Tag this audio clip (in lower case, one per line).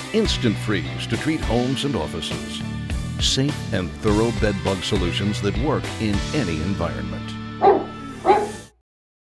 music
speech